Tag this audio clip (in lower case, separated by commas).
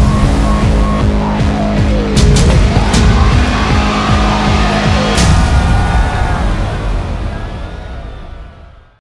music